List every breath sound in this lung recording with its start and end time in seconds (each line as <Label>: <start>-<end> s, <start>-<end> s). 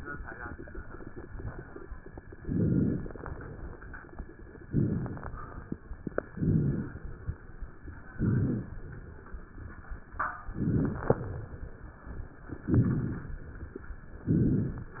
Inhalation: 2.35-3.06 s, 4.67-5.37 s, 6.28-6.98 s, 8.12-8.82 s, 10.51-11.37 s, 12.66-13.42 s, 14.29-15.00 s